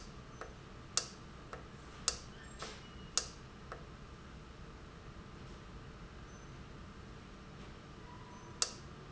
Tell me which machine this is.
valve